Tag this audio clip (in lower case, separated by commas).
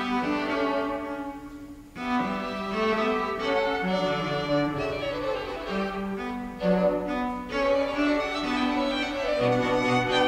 violin, bowed string instrument